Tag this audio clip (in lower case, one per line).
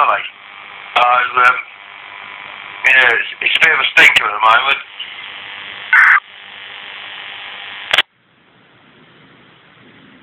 speech